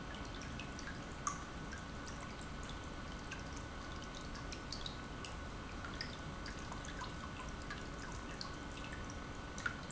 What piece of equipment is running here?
pump